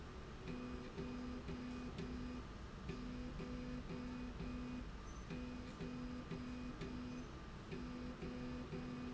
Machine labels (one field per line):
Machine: slide rail